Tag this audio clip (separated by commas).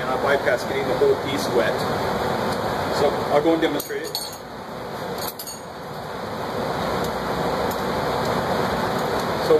Glass, Speech